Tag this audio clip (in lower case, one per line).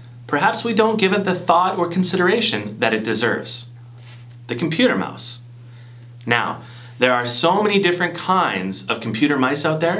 speech